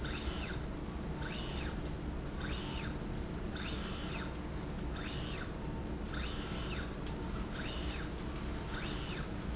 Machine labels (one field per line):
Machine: slide rail